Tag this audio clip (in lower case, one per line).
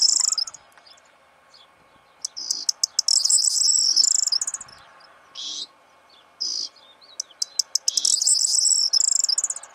mynah bird singing